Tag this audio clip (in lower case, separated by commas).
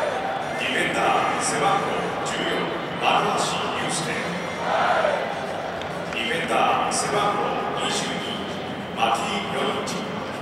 people booing